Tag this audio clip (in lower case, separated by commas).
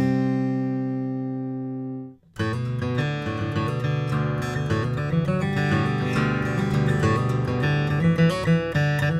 musical instrument, guitar, acoustic guitar, music, plucked string instrument, inside a small room